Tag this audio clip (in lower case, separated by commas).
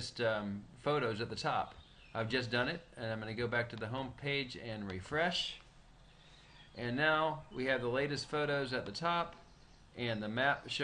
speech